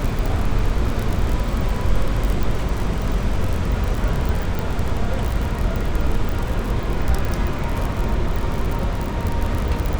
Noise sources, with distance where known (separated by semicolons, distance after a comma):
engine of unclear size, near